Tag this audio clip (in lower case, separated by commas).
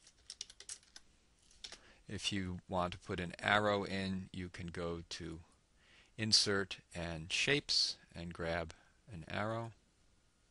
computer keyboard, speech